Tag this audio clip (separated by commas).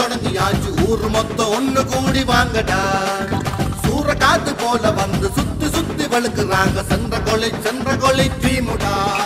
Music